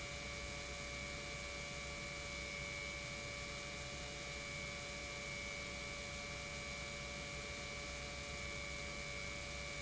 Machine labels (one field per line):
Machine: pump